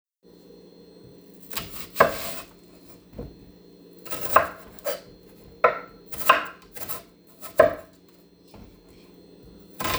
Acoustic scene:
kitchen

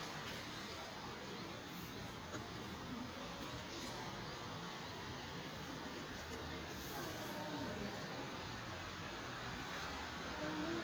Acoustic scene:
residential area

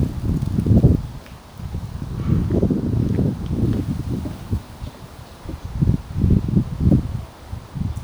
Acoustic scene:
residential area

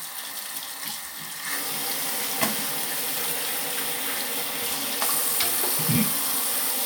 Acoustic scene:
restroom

